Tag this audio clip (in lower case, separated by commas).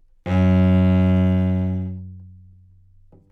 music, bowed string instrument, musical instrument